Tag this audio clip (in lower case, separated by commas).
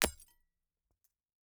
shatter, glass